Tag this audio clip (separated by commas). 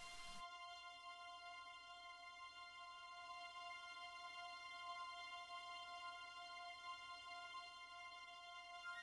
Music, Tender music, Theme music